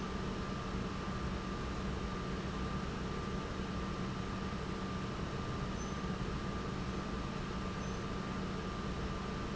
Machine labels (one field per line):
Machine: pump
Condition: normal